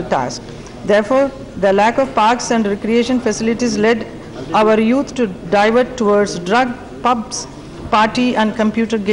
A woman speaking on a microphone